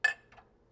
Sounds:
dishes, pots and pans
clink
glass
domestic sounds

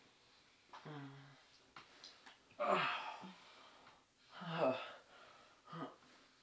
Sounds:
human voice

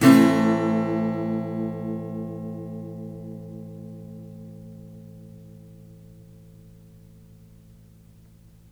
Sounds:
strum
plucked string instrument
music
guitar
musical instrument
acoustic guitar

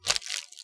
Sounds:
crumpling

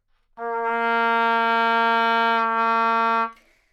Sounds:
woodwind instrument
music
musical instrument

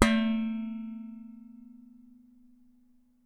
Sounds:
home sounds
dishes, pots and pans

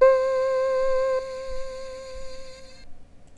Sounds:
musical instrument
music
keyboard (musical)

